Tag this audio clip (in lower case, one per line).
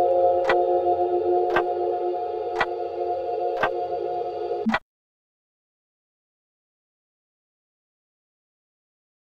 tick-tock
tick